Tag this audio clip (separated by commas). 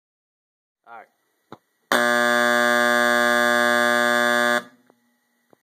inside a large room or hall, Speech